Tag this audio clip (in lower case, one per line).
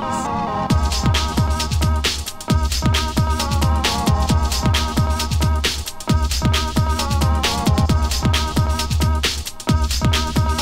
music